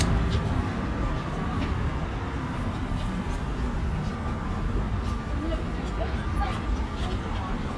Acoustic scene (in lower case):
residential area